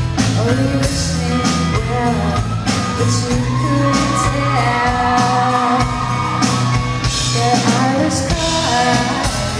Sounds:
Music

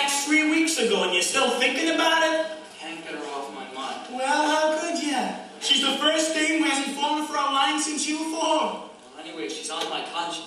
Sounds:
Speech

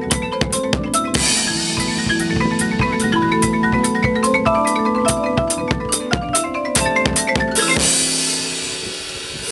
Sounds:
Percussion, Music

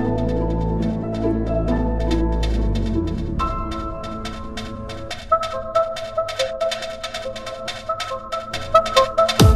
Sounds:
Music, Dubstep

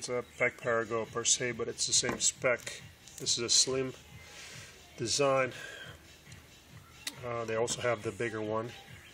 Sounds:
Speech

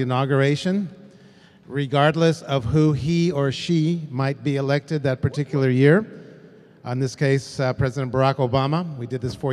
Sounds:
Speech

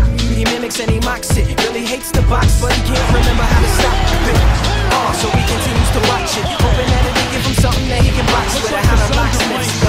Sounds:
Speech, Music, Exciting music

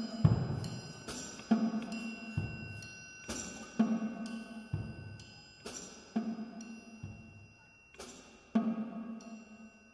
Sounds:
Drum kit, Music, Musical instrument, Percussion, Drum

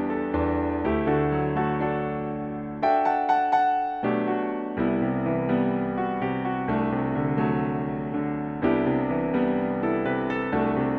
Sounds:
Music

